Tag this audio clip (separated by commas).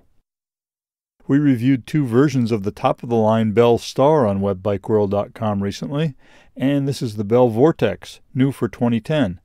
Speech